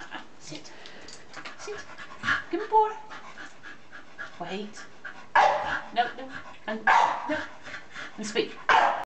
A dog is panting and barking and a person speaks